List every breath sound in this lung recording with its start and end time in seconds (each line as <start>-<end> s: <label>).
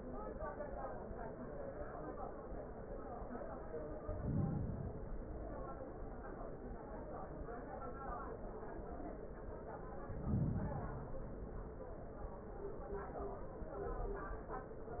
3.96-5.17 s: inhalation
9.97-11.26 s: inhalation